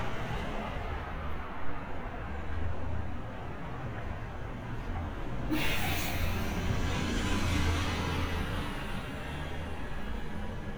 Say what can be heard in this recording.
large-sounding engine